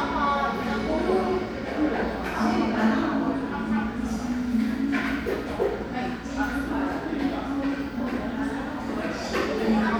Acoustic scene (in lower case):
crowded indoor space